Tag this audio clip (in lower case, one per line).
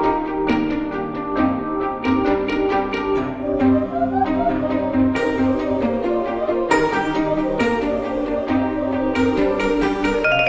bowed string instrument
music
string section